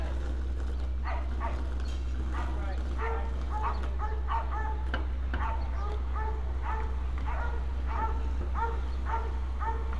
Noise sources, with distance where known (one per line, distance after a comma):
dog barking or whining, near